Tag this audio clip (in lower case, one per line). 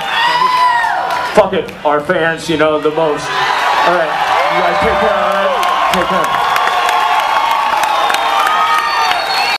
man speaking
speech